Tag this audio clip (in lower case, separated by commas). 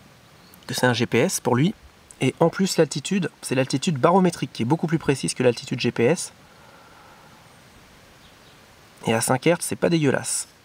speech